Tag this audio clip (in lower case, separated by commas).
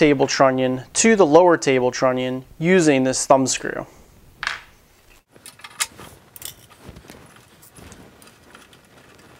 speech, tools